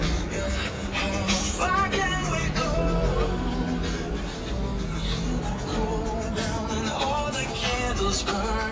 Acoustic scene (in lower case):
street